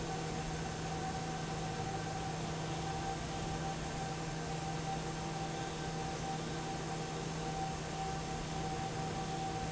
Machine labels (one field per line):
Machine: fan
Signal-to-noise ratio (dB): -6 dB